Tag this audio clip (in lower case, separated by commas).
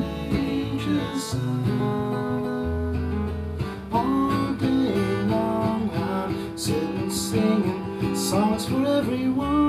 plucked string instrument, music, guitar, musical instrument, acoustic guitar